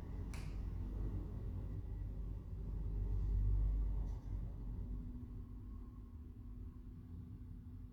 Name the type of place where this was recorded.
elevator